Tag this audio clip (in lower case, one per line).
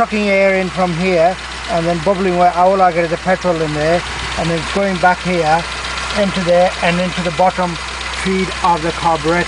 speech